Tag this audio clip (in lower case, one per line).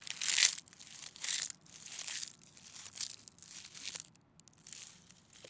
chewing